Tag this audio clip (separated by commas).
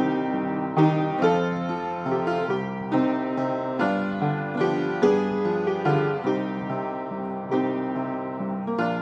Piano, Music